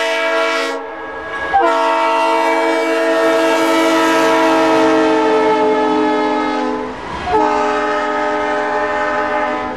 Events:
0.0s-0.7s: train whistle
0.0s-9.7s: train
1.5s-6.8s: train whistle
7.3s-9.7s: train whistle

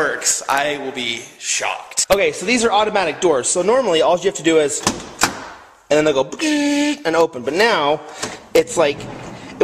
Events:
0.0s-1.8s: male speech
0.0s-9.6s: background noise
0.0s-9.6s: mechanisms
1.9s-4.7s: male speech
4.8s-5.0s: generic impact sounds
5.2s-5.3s: generic impact sounds
5.9s-6.2s: male speech
6.3s-6.9s: male speech
7.0s-7.3s: male speech
7.3s-8.0s: male speech
8.2s-8.3s: generic impact sounds
8.5s-9.1s: male speech
8.9s-9.6s: sliding door

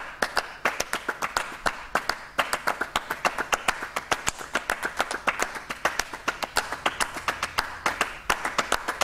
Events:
0.0s-9.0s: background noise
0.2s-0.4s: clapping
0.6s-1.4s: clapping
1.6s-1.7s: clapping
1.9s-2.1s: clapping
2.3s-8.1s: clapping
8.3s-9.0s: clapping

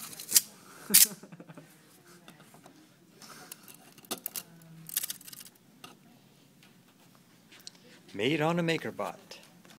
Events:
0.0s-0.4s: generic impact sounds
0.0s-9.7s: background noise
0.4s-0.9s: breathing
0.8s-1.1s: generic impact sounds
1.0s-1.6s: giggle
1.9s-2.6s: breathing
2.2s-2.7s: generic impact sounds
3.5s-4.4s: generic impact sounds
4.9s-5.5s: generic impact sounds
5.8s-6.1s: generic impact sounds
6.0s-6.5s: breathing
6.6s-7.2s: generic impact sounds
7.5s-8.0s: generic impact sounds
8.1s-9.1s: man speaking
9.3s-9.5s: generic impact sounds
9.6s-9.7s: generic impact sounds

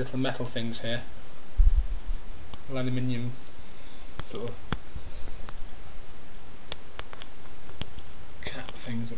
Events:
0.0s-1.0s: male speech
0.0s-9.1s: mechanisms
1.6s-1.9s: generic impact sounds
2.4s-2.6s: generic impact sounds
2.7s-3.4s: male speech
3.4s-3.6s: generic impact sounds
3.4s-4.2s: breathing
4.2s-4.5s: generic impact sounds
4.3s-4.6s: male speech
4.6s-4.8s: generic impact sounds
4.9s-5.5s: breathing
5.4s-5.6s: generic impact sounds
6.7s-7.3s: generic impact sounds
7.7s-8.2s: generic impact sounds
8.4s-9.0s: generic impact sounds
8.4s-9.1s: male speech

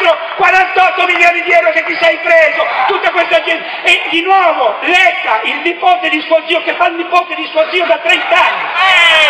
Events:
0.0s-3.6s: man speaking
0.0s-9.2s: crowd
0.0s-9.2s: monologue
0.2s-0.4s: generic impact sounds
1.1s-1.2s: generic impact sounds
1.4s-1.6s: generic impact sounds
1.8s-1.9s: generic impact sounds
3.8s-4.7s: man speaking
4.8s-8.5s: man speaking
8.7s-9.2s: shout

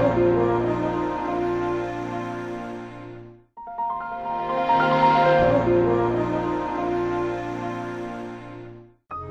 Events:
0.0s-3.4s: music
3.5s-8.9s: music
9.1s-9.3s: music

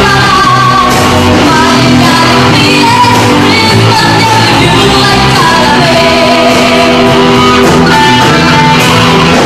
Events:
0.0s-1.2s: female speech
0.0s-9.4s: music
1.5s-7.2s: female speech

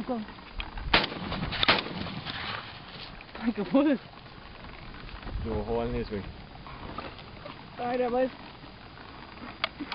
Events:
0.0s-0.2s: female speech
0.0s-8.3s: conversation
0.0s-9.9s: wind
0.6s-0.6s: generic impact sounds
0.8s-2.1s: wind noise (microphone)
0.9s-1.1s: gunshot
1.1s-1.6s: generic impact sounds
1.6s-1.8s: gunshot
2.3s-2.6s: generic impact sounds
2.9s-3.1s: generic impact sounds
3.3s-4.0s: female speech
5.3s-6.2s: wind noise (microphone)
5.5s-6.2s: man speaking
6.5s-7.6s: generic impact sounds
7.8s-8.3s: female speech
7.9s-8.0s: generic impact sounds
9.4s-9.9s: generic impact sounds

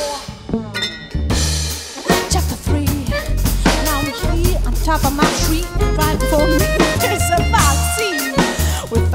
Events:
0.0s-0.2s: female singing
0.0s-9.1s: music
2.1s-3.3s: female singing
3.8s-8.4s: female singing
6.6s-7.3s: laughter
8.4s-8.8s: breathing

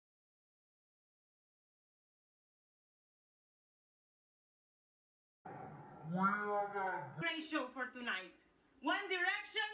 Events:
5.4s-9.7s: background noise
5.4s-7.2s: sound effect
6.0s-7.2s: speech synthesizer
7.2s-8.4s: woman speaking
8.8s-9.7s: woman speaking

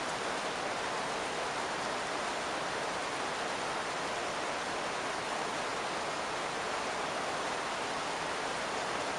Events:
0.0s-9.1s: rain

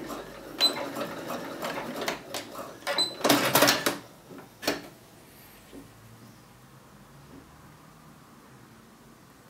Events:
0.0s-4.0s: sewing machine
0.0s-9.4s: background noise
0.6s-0.8s: beep
3.0s-3.2s: beep
4.3s-4.4s: generic impact sounds
4.6s-4.9s: sewing machine
5.7s-6.4s: surface contact
7.2s-7.5s: surface contact

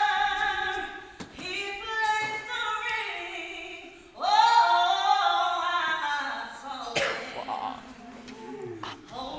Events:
0.0s-9.3s: speech babble
0.0s-1.2s: female singing
1.4s-4.0s: female singing
4.1s-7.0s: female singing
6.6s-7.3s: cough
7.3s-7.9s: human voice

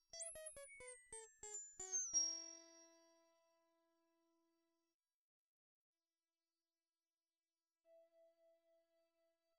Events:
0.0s-5.0s: background noise
0.0s-3.7s: music
6.0s-6.7s: background noise
7.8s-9.5s: background noise
7.8s-9.5s: music

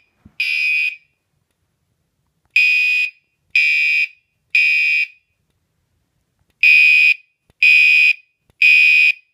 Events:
0.0s-0.2s: smoke detector
0.0s-9.3s: background noise
0.2s-0.3s: tap
0.4s-1.1s: smoke detector
1.4s-1.5s: tick
2.2s-2.5s: generic impact sounds
2.5s-3.3s: smoke detector
3.5s-4.4s: smoke detector
4.5s-5.3s: smoke detector
5.4s-5.6s: tick
6.3s-6.5s: tick
6.6s-7.3s: smoke detector
7.4s-7.5s: tick
7.6s-8.4s: smoke detector
8.4s-8.5s: tick
8.6s-9.3s: smoke detector

